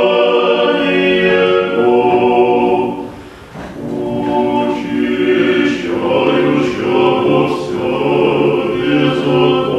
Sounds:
Music, Gospel music, Singing, Choir

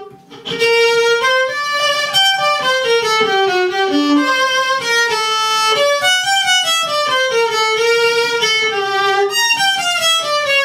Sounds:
Musical instrument, playing violin, fiddle, Music

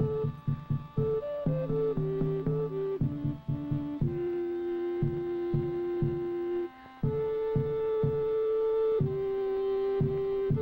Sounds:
Music

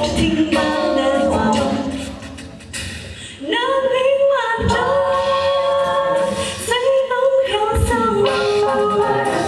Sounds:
Music

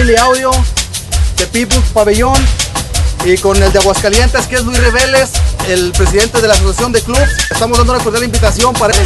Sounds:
Music, Speech

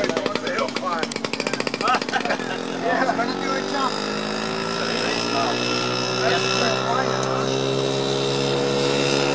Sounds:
Car, Vehicle

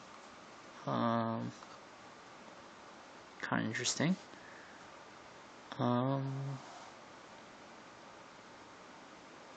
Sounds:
Speech

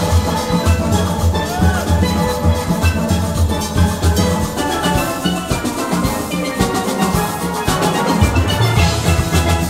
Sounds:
Music, Steelpan

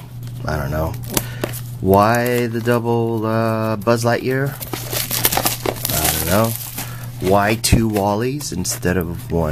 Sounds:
Speech, monologue

